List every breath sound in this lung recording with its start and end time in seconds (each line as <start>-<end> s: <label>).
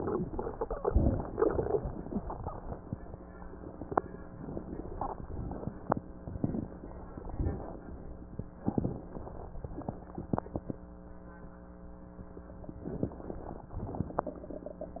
0.00-0.86 s: inhalation
0.87-1.74 s: exhalation
1.75-3.04 s: inhalation
4.37-5.23 s: exhalation
5.24-6.10 s: inhalation
6.37-7.35 s: exhalation
7.35-8.27 s: inhalation
8.60-9.63 s: exhalation
12.82-13.70 s: inhalation
13.73-14.61 s: exhalation